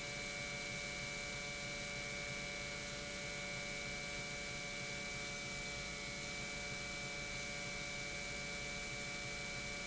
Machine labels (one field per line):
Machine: pump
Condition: normal